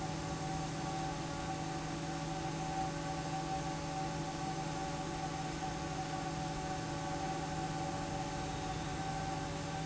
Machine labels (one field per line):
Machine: fan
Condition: normal